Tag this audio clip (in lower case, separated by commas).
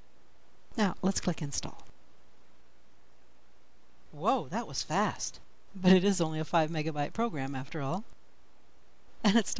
speech